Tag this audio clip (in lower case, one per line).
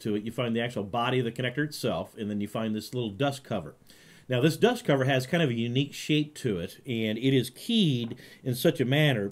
speech